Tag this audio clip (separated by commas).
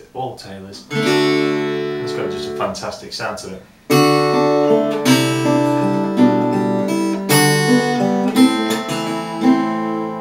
Music, Guitar, Plucked string instrument, Musical instrument, Strum, Speech